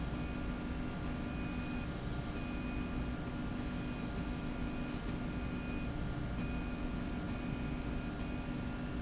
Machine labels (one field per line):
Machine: slide rail